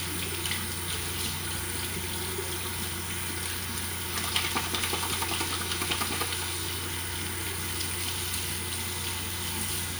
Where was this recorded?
in a restroom